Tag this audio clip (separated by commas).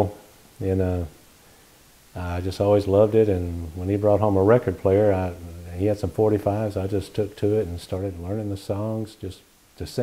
Speech